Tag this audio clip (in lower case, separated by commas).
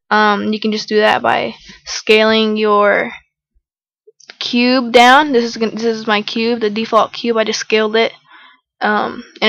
speech